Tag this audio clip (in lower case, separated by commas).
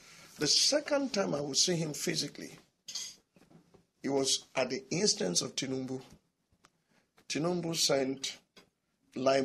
inside a small room, speech